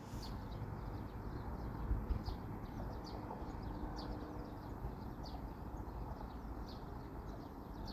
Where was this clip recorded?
in a park